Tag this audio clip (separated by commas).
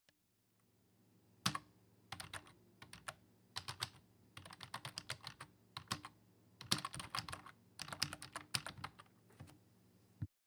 Typing, home sounds